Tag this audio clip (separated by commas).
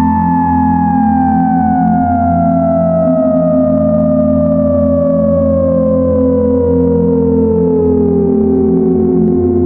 playing theremin